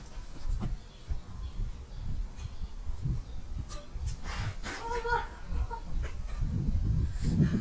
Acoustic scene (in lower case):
park